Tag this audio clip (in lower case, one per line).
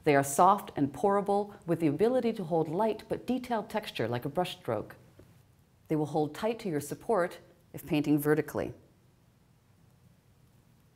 speech